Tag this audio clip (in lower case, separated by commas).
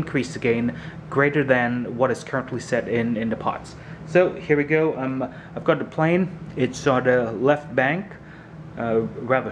speech